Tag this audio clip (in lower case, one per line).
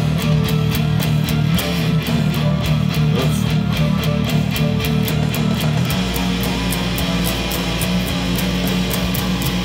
guitar
music
plucked string instrument
acoustic guitar
musical instrument
speech
strum